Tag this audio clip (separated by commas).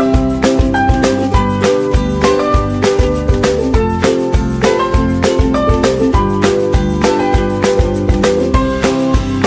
Music